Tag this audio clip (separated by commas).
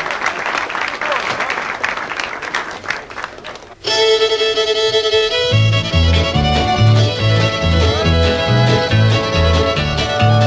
Musical instrument, Music, Speech, fiddle